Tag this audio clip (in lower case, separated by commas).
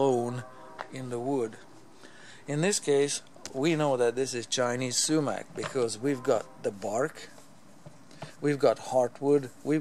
speech